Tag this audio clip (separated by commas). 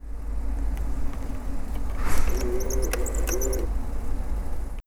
Printer, Mechanisms